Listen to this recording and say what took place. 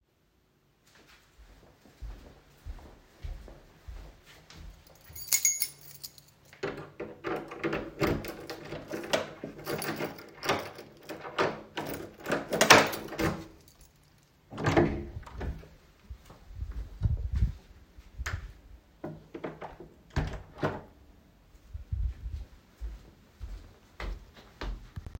I walked toward the entrance while holding the device. I briefly jingled a keychain, opened and closed the door, and took a few more steps in the hallway.